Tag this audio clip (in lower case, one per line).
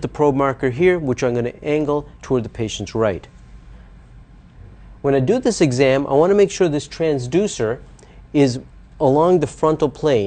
speech